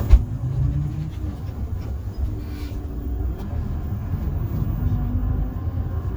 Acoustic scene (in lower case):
bus